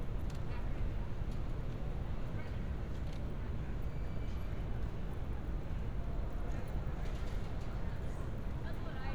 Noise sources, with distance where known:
engine of unclear size, far; person or small group talking

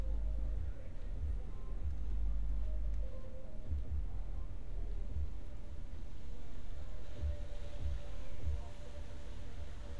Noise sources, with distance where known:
music from a moving source, near

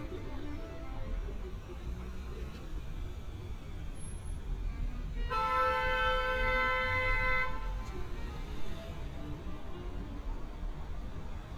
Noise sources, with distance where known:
car horn, near; music from a fixed source

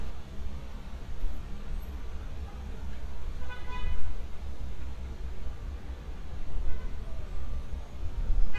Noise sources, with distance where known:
car horn, far

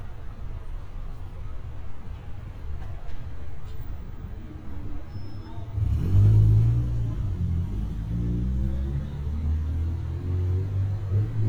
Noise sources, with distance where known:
medium-sounding engine, near

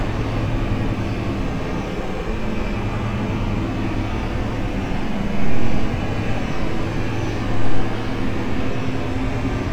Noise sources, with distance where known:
large-sounding engine, near

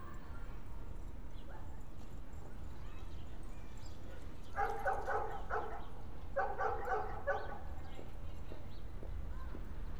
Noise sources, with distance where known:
person or small group talking; dog barking or whining, near

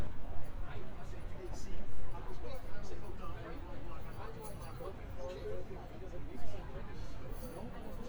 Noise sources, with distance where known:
person or small group talking

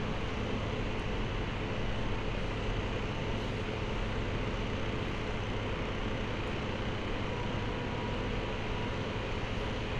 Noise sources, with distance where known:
large-sounding engine, near

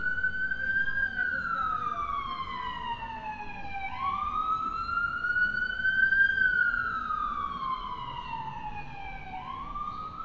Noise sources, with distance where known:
siren, far

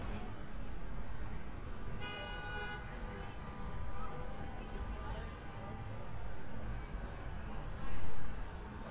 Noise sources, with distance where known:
car horn, far; unidentified human voice, far

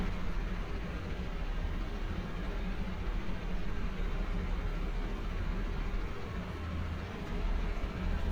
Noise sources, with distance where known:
engine of unclear size

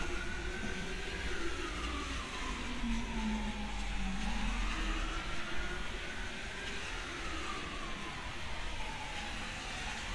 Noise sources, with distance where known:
siren, far

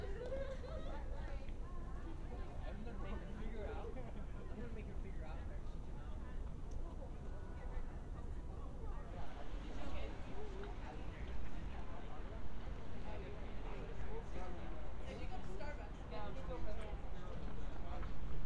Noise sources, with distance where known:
person or small group talking, near

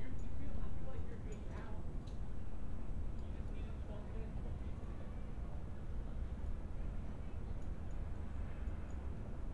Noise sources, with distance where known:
person or small group talking, far

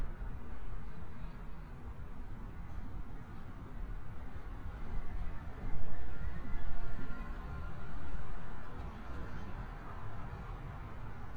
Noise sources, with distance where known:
background noise

